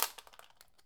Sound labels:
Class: object falling